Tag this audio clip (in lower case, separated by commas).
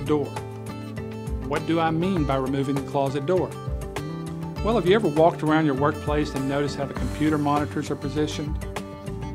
music, speech